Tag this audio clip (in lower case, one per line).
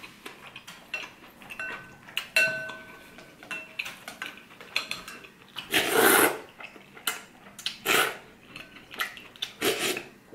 people eating noodle